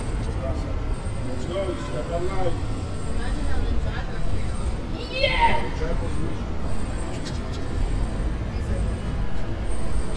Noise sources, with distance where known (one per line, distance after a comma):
unidentified human voice, near